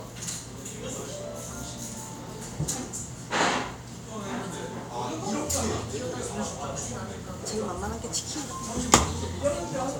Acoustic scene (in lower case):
cafe